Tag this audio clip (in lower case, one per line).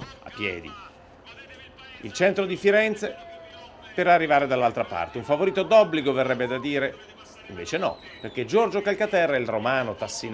run
speech
outside, urban or man-made